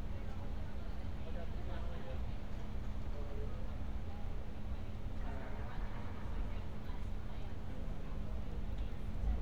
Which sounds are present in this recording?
person or small group talking